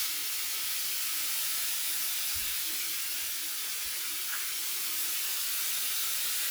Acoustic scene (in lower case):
restroom